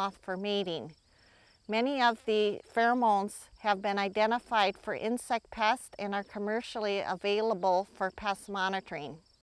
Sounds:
speech

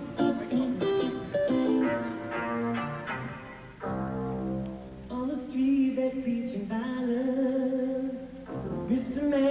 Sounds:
music

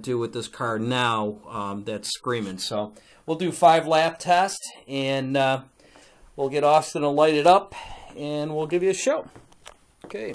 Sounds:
speech

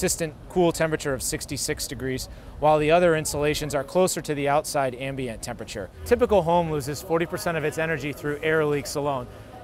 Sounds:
speech

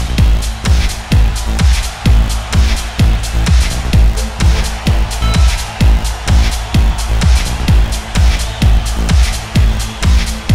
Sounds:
music

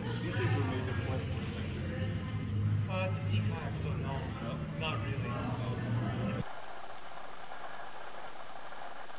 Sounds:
speech

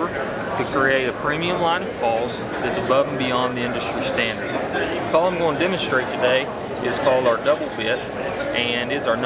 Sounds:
speech

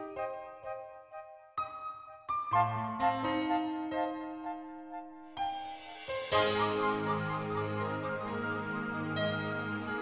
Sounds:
music

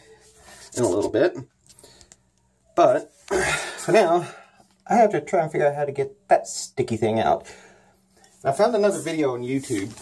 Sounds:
speech

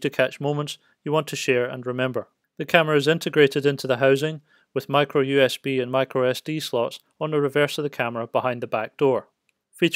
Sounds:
speech

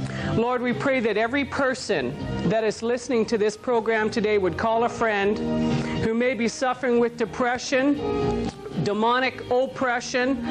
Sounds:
speech
music

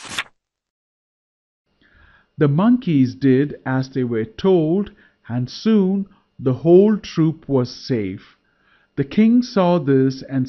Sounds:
speech

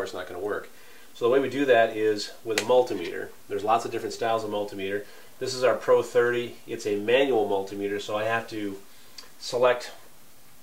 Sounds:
speech

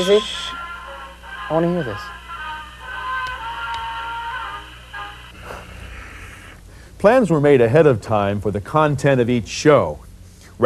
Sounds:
radio
speech
music

